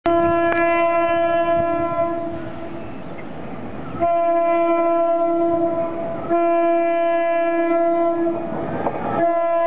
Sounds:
Train, Railroad car, Vehicle, honking, Train horn, Rail transport

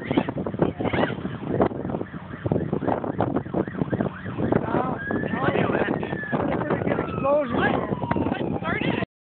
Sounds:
Speech

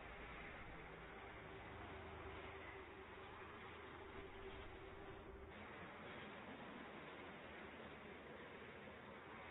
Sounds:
Vehicle

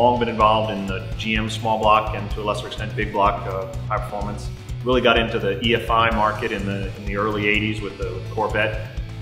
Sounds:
Speech, Music

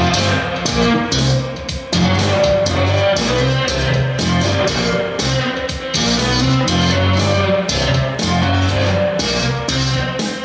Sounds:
Bass guitar, Music

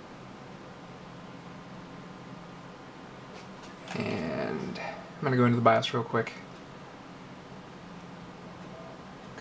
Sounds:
Speech

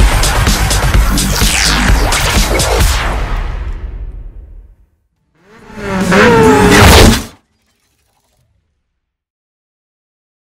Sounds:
Music

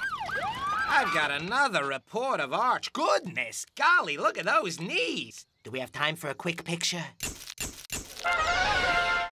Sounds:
Speech

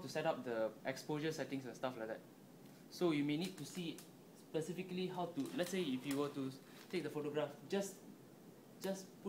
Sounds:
Speech, Camera, inside a small room

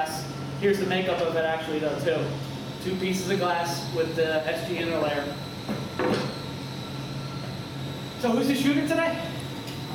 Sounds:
Speech

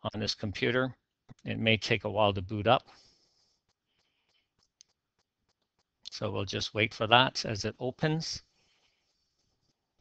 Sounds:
Speech

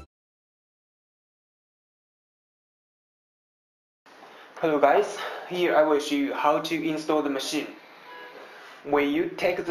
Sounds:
Speech

